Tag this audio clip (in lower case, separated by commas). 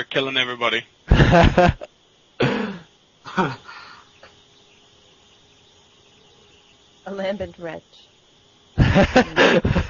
speech